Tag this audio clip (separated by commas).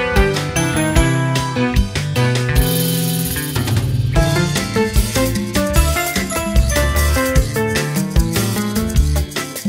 tinkle